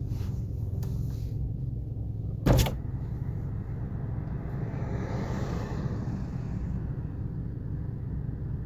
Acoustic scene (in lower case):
car